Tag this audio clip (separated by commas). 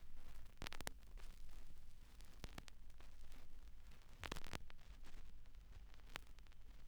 Crackle